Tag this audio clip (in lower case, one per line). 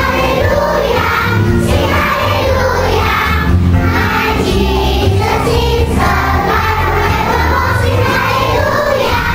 music
choir